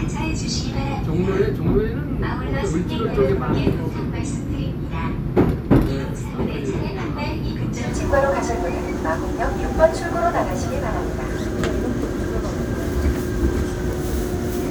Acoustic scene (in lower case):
subway train